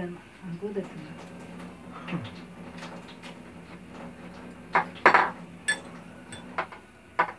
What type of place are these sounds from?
restaurant